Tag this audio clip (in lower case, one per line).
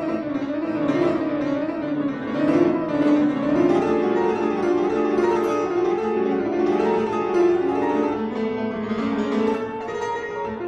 music